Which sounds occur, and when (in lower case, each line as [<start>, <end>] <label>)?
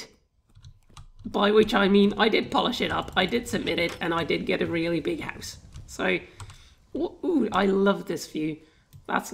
[0.00, 0.25] generic impact sounds
[0.00, 9.33] mechanisms
[0.38, 4.05] computer keyboard
[1.30, 5.57] male speech
[5.70, 5.79] computer keyboard
[5.87, 6.29] male speech
[6.23, 6.76] breathing
[6.38, 6.54] computer keyboard
[6.92, 8.55] male speech
[7.50, 7.60] computer keyboard
[8.60, 8.88] breathing
[8.88, 8.98] computer keyboard